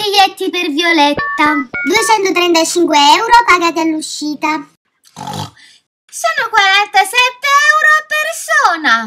A woman is speaking and oinking like a pig